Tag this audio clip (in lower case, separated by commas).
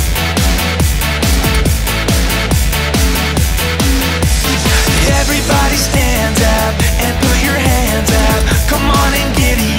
funk, happy music, music, pop music